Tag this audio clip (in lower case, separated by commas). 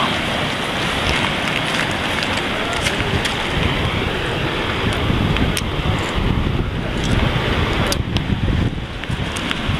outside, rural or natural